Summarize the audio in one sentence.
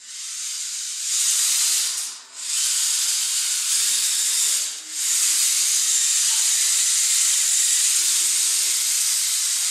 A small toy car is revving its engine